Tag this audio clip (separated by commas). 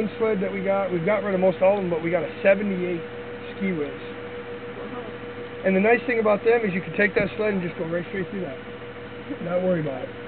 Speech, Vehicle, Truck